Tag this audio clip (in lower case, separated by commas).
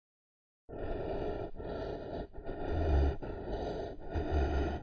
breathing, respiratory sounds